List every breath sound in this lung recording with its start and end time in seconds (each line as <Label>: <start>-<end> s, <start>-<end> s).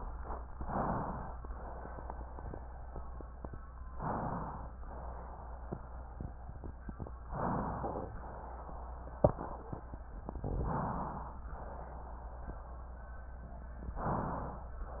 Inhalation: 0.44-1.35 s, 3.89-4.80 s, 7.25-8.16 s, 10.42-11.33 s, 13.95-14.86 s